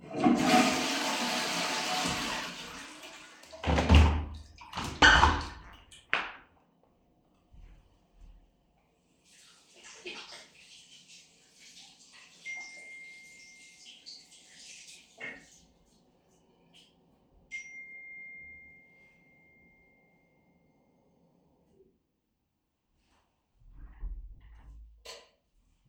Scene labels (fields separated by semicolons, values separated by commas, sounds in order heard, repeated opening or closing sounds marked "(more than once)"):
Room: lavatory; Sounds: toilet flushing, window, running water, phone ringing, light switch